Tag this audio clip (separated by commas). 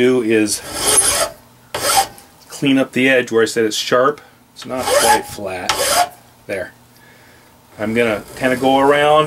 Rub, Filing (rasp)